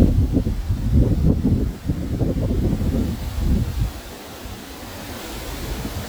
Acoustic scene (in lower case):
park